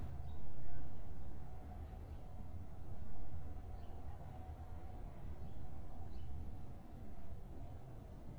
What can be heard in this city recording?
background noise